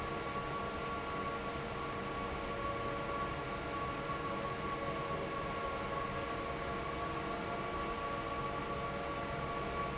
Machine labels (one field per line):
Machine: fan